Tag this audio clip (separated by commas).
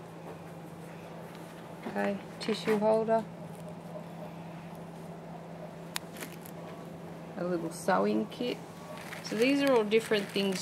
Speech